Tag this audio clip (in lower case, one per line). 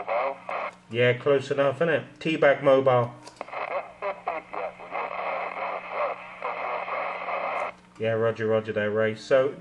radio
speech